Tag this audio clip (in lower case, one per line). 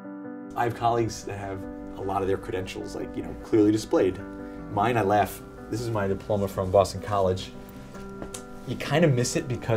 speech